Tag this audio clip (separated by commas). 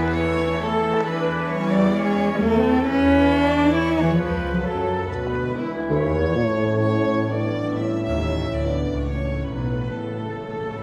Music